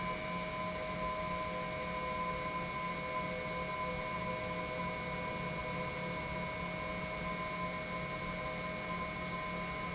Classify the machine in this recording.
pump